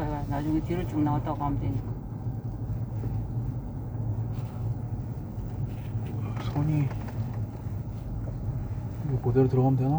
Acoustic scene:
car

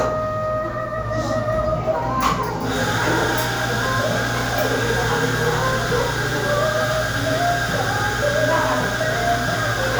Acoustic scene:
cafe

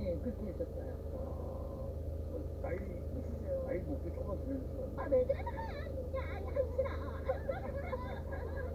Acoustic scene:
car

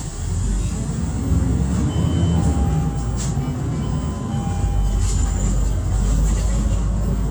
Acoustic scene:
bus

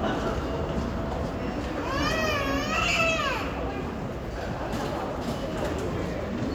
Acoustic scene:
crowded indoor space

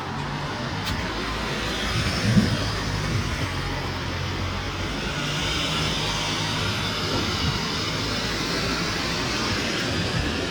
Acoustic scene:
street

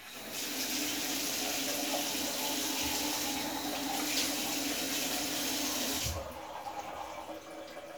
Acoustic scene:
restroom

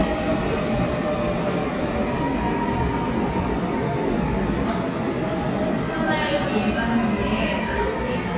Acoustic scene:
subway station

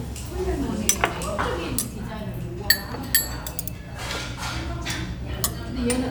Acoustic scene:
restaurant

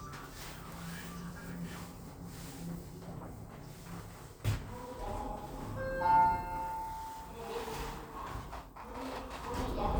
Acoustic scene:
elevator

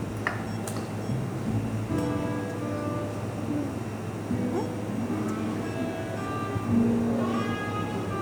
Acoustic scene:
cafe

